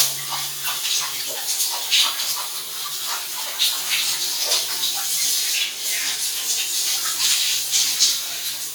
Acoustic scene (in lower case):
restroom